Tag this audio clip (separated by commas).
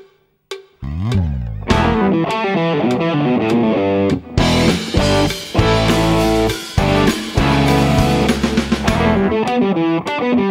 Musical instrument, Guitar, Music